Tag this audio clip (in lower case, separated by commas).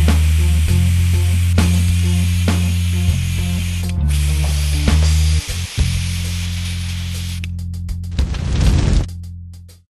music, spray